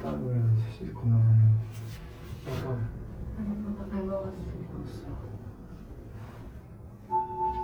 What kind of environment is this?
elevator